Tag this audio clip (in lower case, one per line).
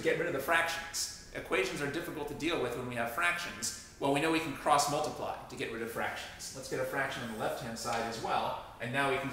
speech